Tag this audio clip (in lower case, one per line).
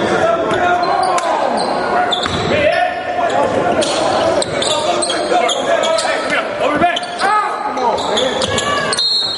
speech